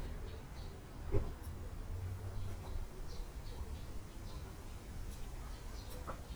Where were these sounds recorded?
in a park